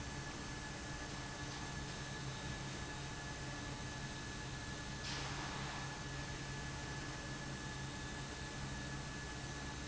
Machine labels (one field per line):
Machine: fan